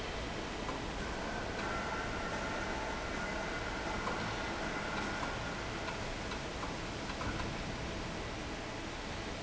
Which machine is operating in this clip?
fan